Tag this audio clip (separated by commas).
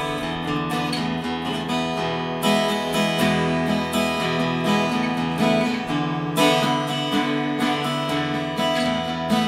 Musical instrument, Acoustic guitar, Plucked string instrument, Guitar, Strum, Electric guitar, Music